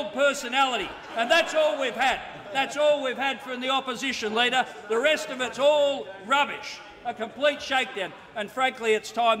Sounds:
Speech

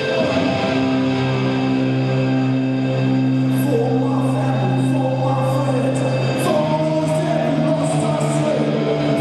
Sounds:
Music, Speech

